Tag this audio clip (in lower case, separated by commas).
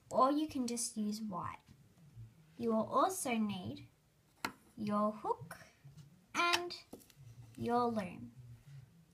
speech